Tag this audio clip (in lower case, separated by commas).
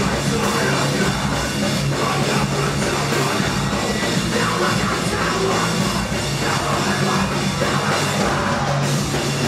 rock music, punk rock, music, singing